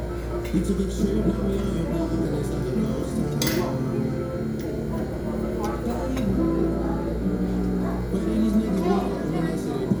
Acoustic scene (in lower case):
crowded indoor space